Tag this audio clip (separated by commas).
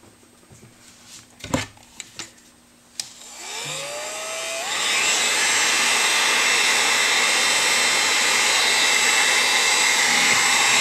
Tools